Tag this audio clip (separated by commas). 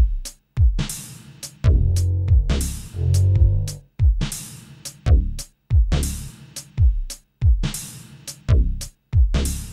Electronic music, Music